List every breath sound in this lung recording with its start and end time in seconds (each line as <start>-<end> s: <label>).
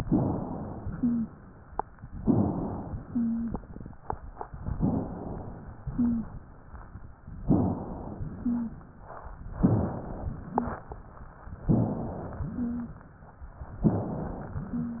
0.00-0.91 s: inhalation
0.93-1.31 s: wheeze
2.12-3.04 s: inhalation
3.07-3.55 s: wheeze
4.74-5.66 s: inhalation
5.84-6.32 s: wheeze
7.47-8.39 s: inhalation
8.37-8.84 s: wheeze
9.62-10.53 s: inhalation
10.55-10.87 s: wheeze
11.65-12.39 s: inhalation
12.43-12.94 s: wheeze
13.87-14.61 s: inhalation